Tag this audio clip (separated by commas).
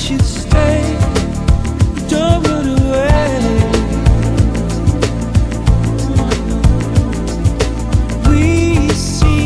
Music